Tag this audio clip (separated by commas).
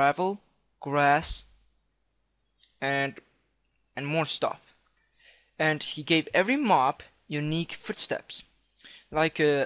Speech